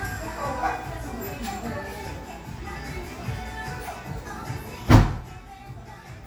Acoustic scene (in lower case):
crowded indoor space